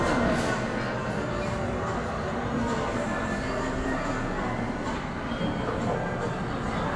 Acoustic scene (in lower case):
cafe